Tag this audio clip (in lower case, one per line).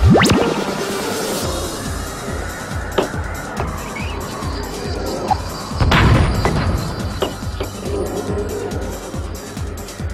music